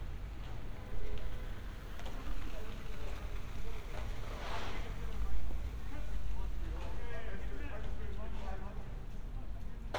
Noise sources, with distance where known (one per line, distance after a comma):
unidentified human voice